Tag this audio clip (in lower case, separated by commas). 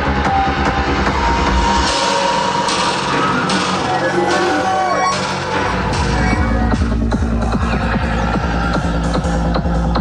trance music, music, crowd, electronic music